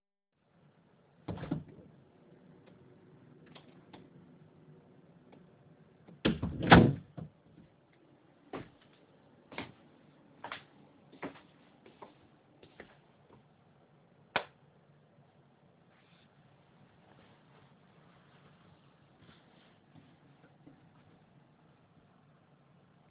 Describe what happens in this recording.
I open the hallway door, walk a few steps inside the hallway, turn on the light switch and put my coat on the coathanger.